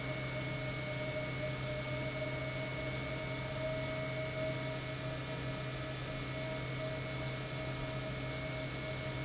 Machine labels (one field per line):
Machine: pump